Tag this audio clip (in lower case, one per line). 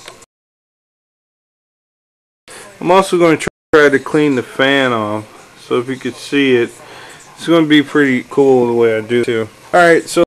speech